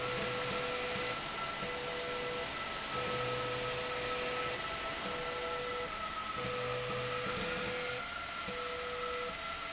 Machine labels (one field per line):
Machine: slide rail